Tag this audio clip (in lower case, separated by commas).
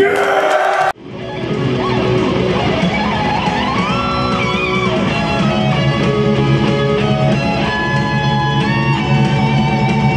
musical instrument, plucked string instrument, strum, electric guitar, music, guitar